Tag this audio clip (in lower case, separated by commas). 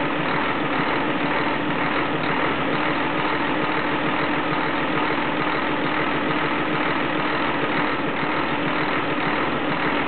engine, vehicle